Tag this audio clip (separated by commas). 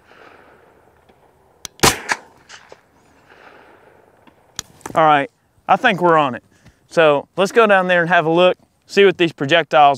Gunshot